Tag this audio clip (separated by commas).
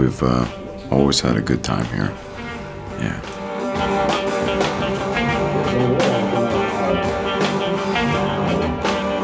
Blues, Speech, Music